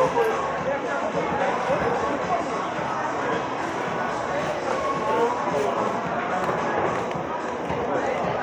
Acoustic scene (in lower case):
cafe